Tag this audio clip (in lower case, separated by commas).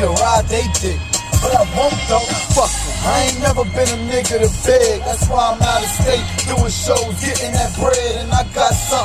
music